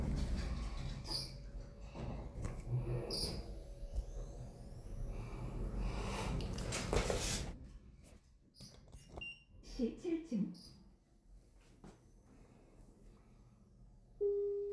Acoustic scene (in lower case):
elevator